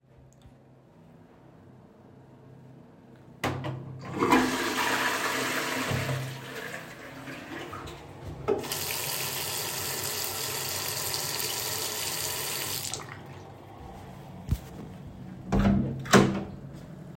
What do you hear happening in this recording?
after toilet flashing go to wash my hands, then go and open the door